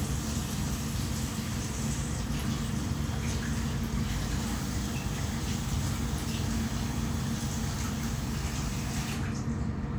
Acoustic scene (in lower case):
restroom